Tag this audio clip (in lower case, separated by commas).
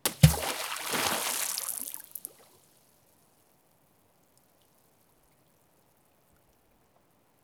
liquid, water, splatter